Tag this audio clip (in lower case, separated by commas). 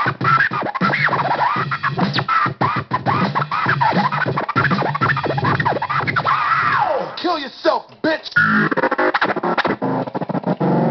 hip hop music, scratching (performance technique), music